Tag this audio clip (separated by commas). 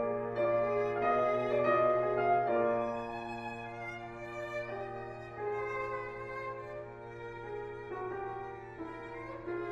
fiddle, Cello, Bowed string instrument